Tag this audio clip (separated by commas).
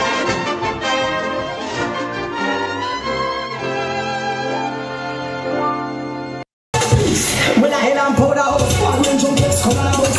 Speech, Music